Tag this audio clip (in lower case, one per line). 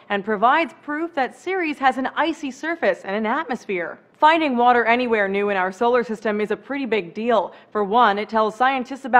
speech